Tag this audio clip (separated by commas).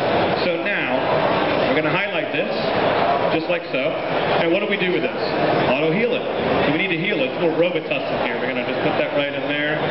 Speech